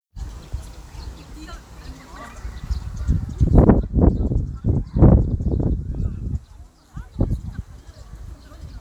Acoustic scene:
park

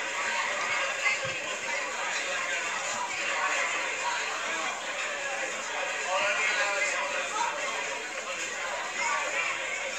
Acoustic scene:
crowded indoor space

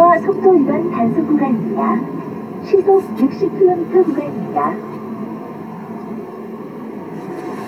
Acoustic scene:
car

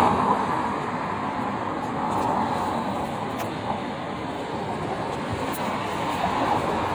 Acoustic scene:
street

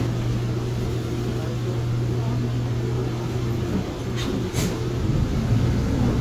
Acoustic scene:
bus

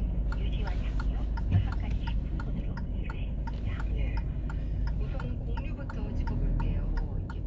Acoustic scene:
car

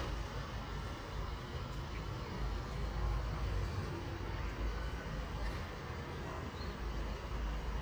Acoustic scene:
residential area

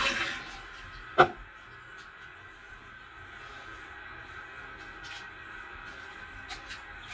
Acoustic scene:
restroom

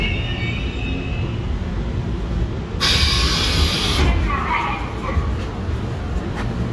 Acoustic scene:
subway train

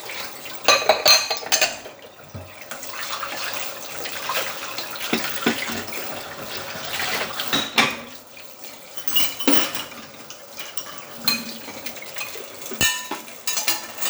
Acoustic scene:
kitchen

